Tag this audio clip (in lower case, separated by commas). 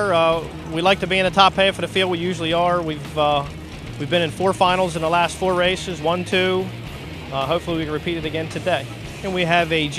music, speech, vehicle